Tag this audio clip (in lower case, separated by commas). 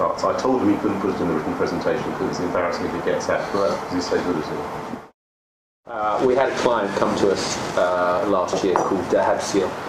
speech